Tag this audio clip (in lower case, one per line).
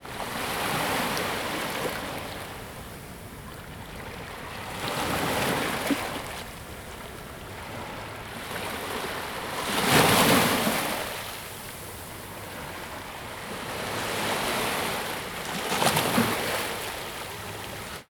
ocean
waves
water